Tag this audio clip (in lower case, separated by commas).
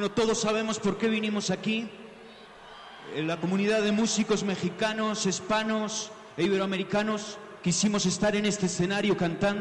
male speech, narration, speech